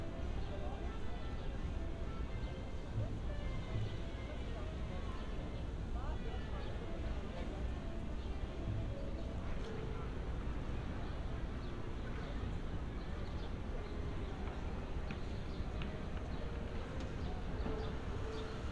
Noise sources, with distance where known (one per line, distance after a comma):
music from a fixed source
person or small group talking